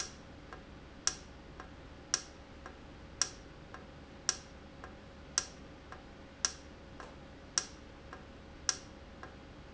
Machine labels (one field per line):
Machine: valve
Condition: normal